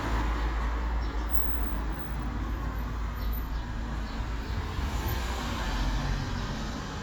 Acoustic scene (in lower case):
street